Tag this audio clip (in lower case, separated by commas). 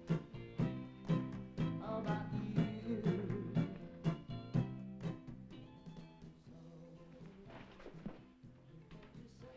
music